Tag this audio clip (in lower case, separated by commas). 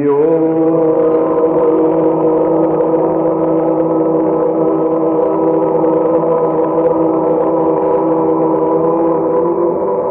mantra, music